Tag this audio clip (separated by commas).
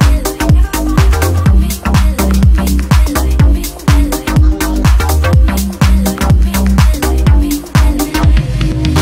Music